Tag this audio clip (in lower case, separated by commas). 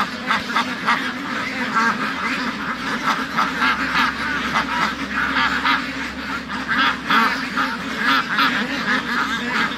duck quacking